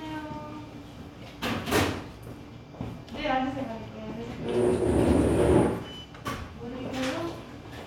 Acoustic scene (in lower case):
restaurant